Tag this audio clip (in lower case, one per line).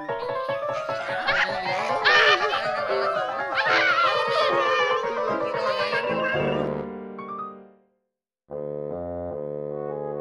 theme music
soundtrack music
music